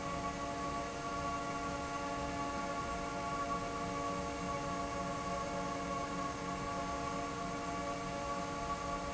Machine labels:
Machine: fan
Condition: normal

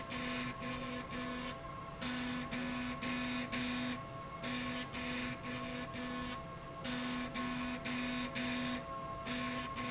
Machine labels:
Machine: slide rail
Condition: abnormal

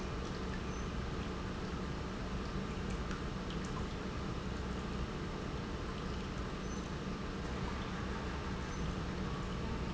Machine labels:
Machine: pump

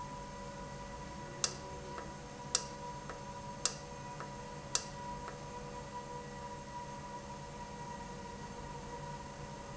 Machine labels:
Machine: valve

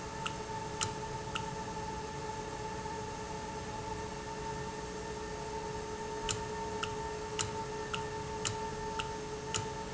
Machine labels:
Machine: valve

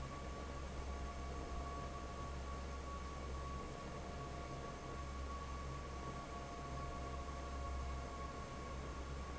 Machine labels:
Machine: fan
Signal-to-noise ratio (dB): 6 dB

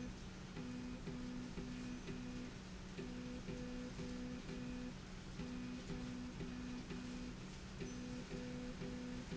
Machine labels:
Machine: slide rail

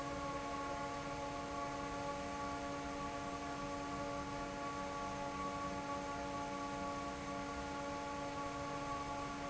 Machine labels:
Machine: fan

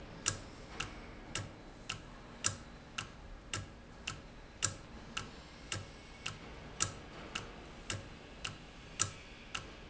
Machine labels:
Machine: valve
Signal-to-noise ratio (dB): 6 dB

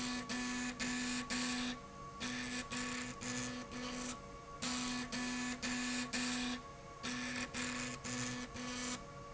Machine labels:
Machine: slide rail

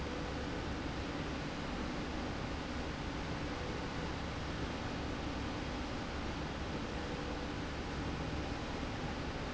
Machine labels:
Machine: slide rail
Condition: normal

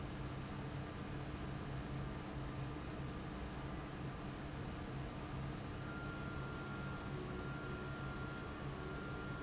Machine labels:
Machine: fan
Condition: abnormal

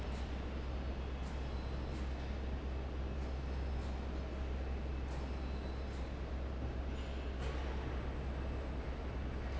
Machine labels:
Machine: fan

